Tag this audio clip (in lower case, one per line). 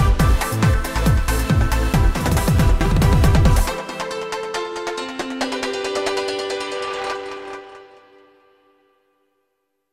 exciting music
music